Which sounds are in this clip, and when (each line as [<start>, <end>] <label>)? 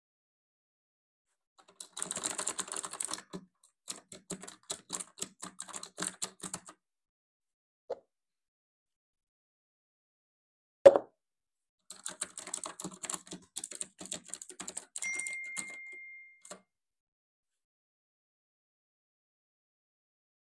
[1.53, 6.80] keyboard typing
[7.86, 8.06] cutlery and dishes
[10.81, 11.06] cutlery and dishes
[11.42, 14.65] phone ringing
[11.82, 16.67] keyboard typing
[15.00, 16.74] phone ringing